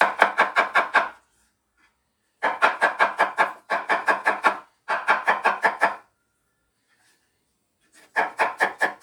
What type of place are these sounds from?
kitchen